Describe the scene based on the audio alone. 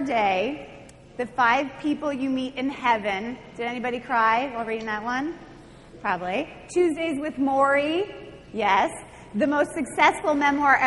A woman speaks clearly in a large space